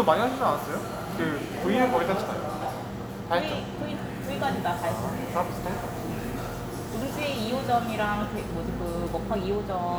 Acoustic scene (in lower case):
cafe